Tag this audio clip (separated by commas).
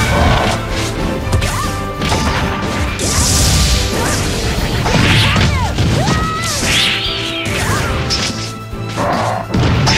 Music